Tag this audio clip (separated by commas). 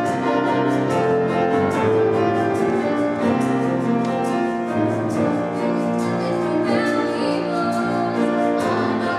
Female singing, Music